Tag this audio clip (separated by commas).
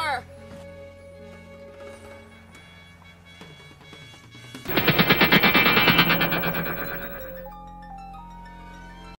Speech, Music